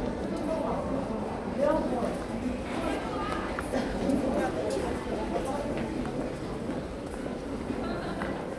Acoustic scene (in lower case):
crowded indoor space